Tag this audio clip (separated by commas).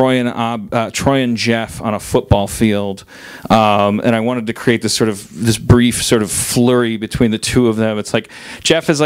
Speech